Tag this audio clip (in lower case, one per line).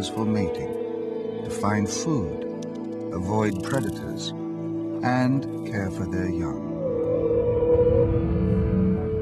music
speech